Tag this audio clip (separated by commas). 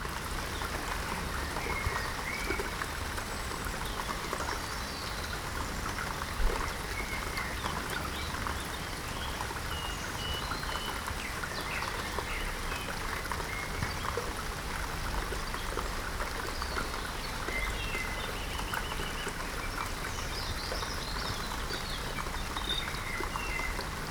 Water, Rain